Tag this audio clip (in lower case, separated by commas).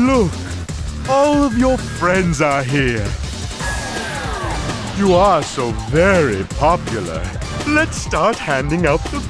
pop music, music, speech